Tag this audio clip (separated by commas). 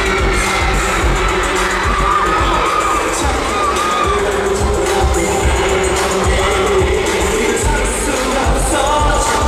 Music